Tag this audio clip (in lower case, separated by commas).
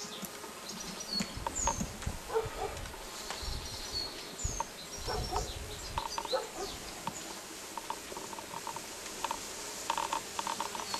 bird, tweet, bird song